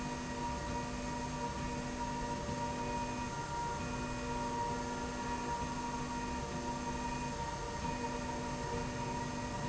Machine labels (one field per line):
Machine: slide rail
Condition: normal